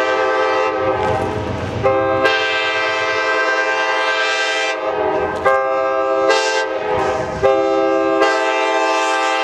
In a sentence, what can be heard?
Train in motion blowing horn multiple times